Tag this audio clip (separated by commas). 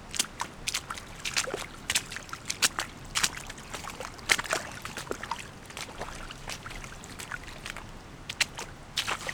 splatter, Liquid, Water